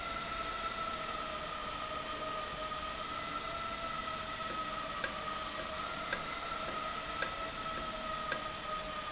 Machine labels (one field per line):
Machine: valve